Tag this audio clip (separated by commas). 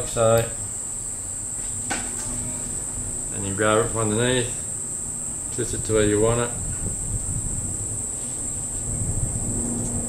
Speech